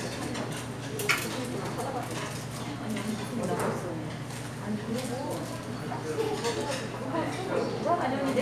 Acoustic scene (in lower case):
restaurant